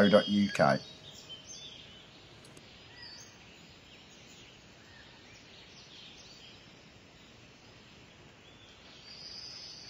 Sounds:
Speech, Environmental noise

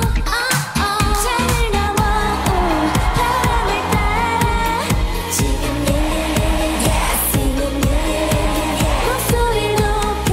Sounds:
Music

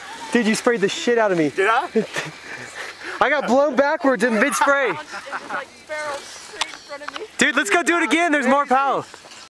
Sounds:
Speech

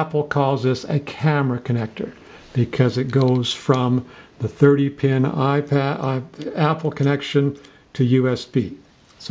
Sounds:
Speech

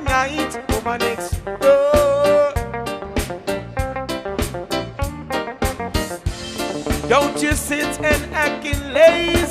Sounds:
Music

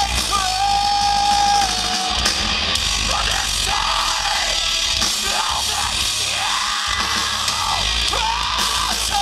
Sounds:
Music

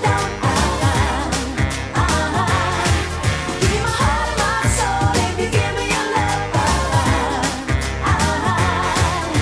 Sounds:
Music

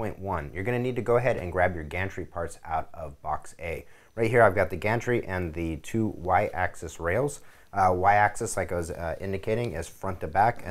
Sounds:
Speech

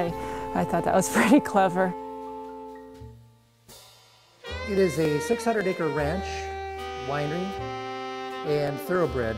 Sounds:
Vibraphone

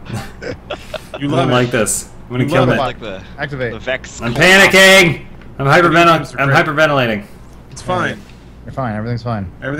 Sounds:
Speech

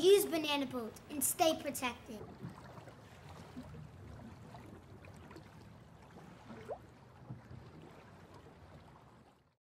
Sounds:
Speech

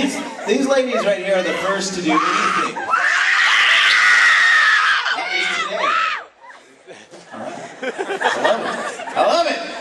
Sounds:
Speech

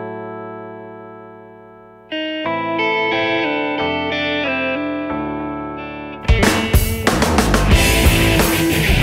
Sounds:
Effects unit, Music, outside, rural or natural

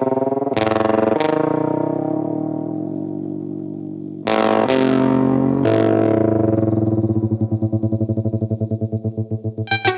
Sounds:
Plucked string instrument, Guitar, Distortion, Music, Electric guitar, Effects unit, Bowed string instrument, Musical instrument

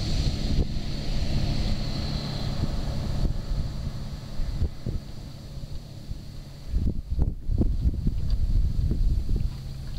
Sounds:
Vehicle, speedboat

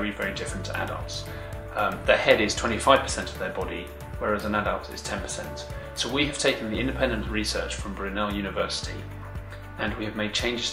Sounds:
Speech, Music

